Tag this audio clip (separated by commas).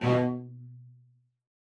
Bowed string instrument, Music, Musical instrument